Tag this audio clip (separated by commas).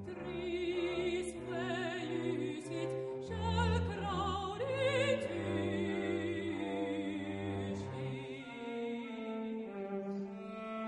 Music